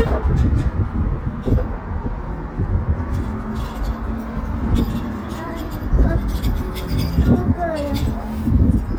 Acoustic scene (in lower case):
residential area